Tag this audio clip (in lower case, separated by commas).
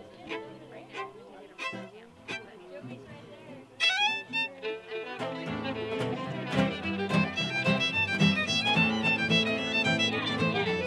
speech, music